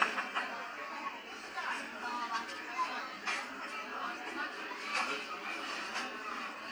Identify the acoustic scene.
restaurant